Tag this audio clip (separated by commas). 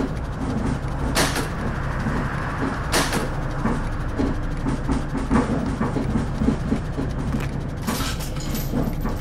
Vehicle